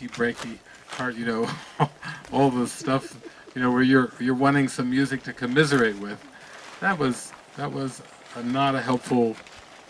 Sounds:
Speech

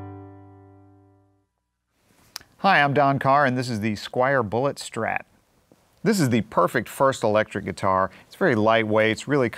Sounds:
Speech

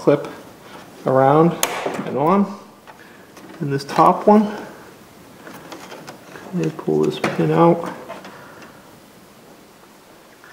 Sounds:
inside a small room, Speech

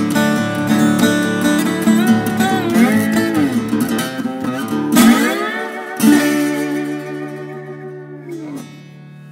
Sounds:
playing steel guitar

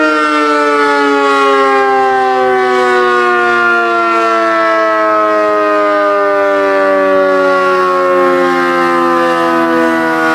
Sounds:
Civil defense siren, Siren

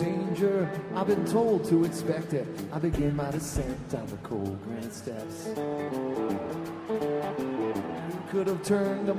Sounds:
Music

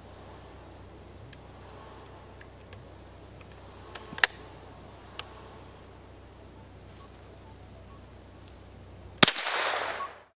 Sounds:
outside, rural or natural

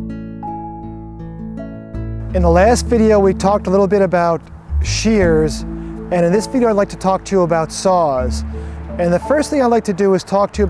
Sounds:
Speech, Music

